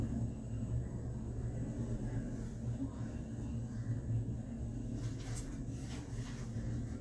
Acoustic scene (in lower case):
elevator